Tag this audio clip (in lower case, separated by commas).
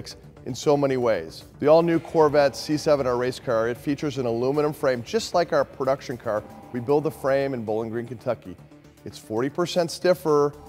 music, speech